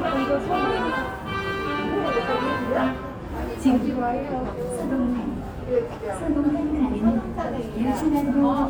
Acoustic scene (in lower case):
subway station